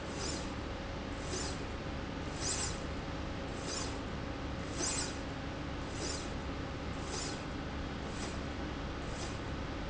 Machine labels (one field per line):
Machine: slide rail